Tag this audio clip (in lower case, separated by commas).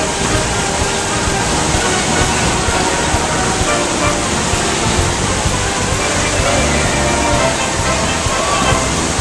stream, music